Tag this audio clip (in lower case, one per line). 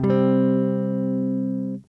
guitar
plucked string instrument
strum
musical instrument
music
electric guitar